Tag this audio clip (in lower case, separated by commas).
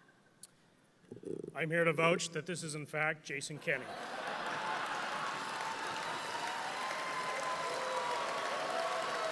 man speaking, speech, narration